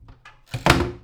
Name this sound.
wooden cupboard closing